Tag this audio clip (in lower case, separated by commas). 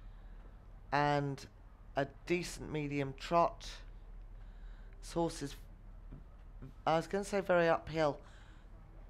speech